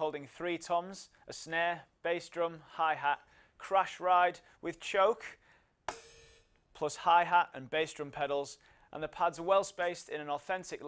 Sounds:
speech

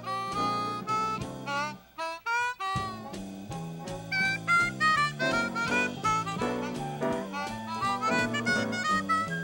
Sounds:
playing harmonica

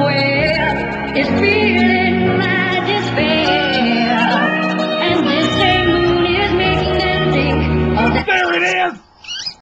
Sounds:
speech, female singing, music

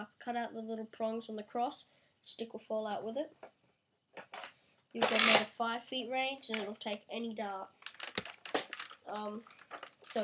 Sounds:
kid speaking, man speaking, speech

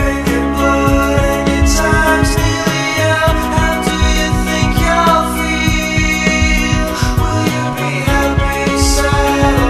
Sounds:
music

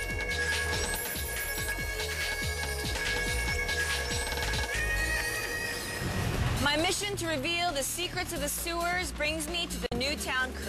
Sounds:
speech, music

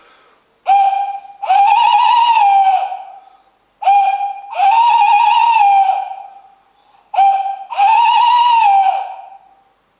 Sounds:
owl hooting

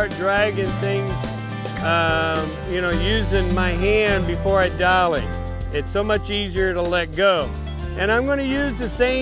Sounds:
music, speech

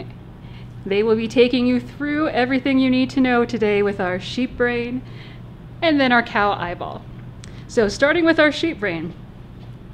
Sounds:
speech

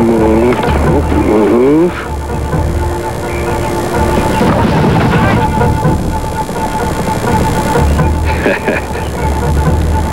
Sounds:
music, speech

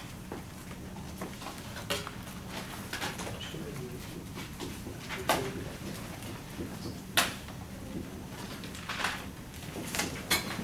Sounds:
inside a large room or hall, speech

